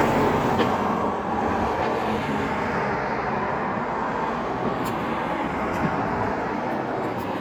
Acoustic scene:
street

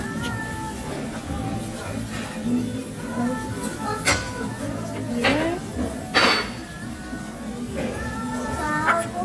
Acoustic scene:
restaurant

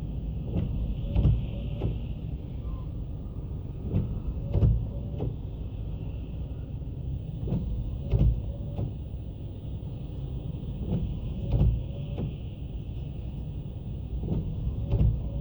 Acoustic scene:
car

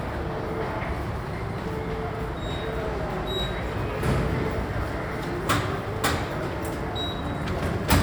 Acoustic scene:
subway station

